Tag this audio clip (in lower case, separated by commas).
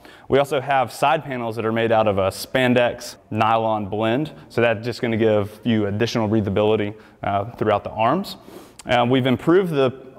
speech